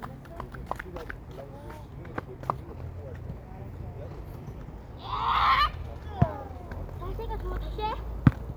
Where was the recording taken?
in a park